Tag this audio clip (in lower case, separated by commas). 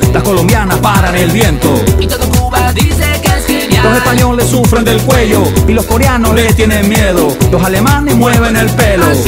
disco, burst, pop music, singing, music